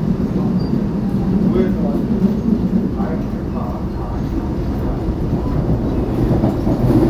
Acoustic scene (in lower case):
subway train